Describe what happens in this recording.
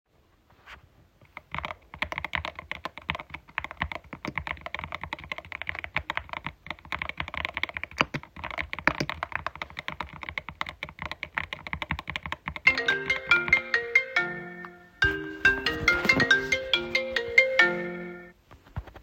Typing on keyboard followed by a phone ringing.